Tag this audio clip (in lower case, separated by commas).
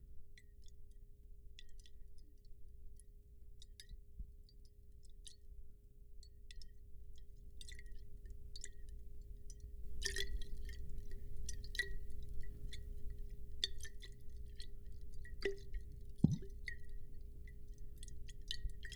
liquid